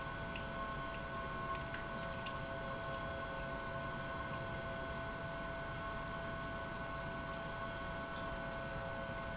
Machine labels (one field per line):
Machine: pump